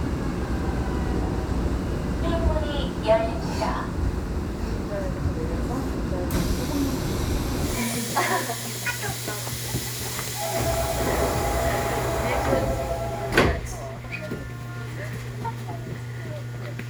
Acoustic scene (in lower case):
subway train